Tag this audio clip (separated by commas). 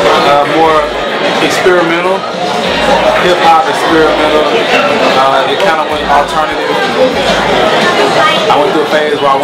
Speech